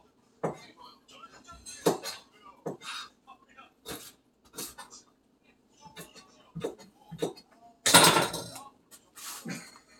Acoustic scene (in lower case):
kitchen